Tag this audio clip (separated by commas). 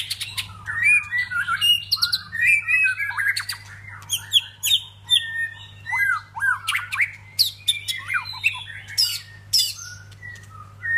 Animal